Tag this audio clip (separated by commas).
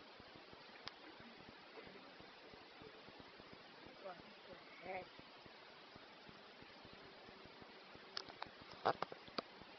Bird, inside a small room